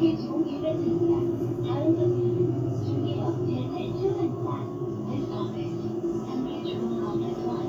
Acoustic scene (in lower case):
bus